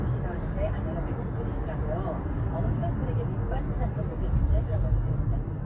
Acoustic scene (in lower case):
car